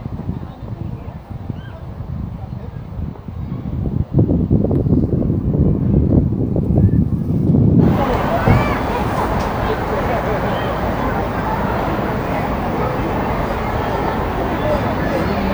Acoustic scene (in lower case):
residential area